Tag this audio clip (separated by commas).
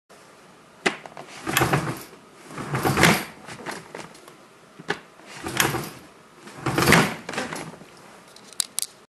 Door, Sliding door